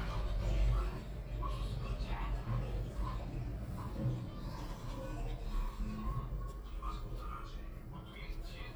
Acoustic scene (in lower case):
elevator